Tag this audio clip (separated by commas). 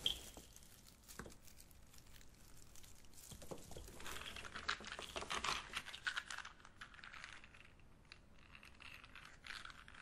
crinkling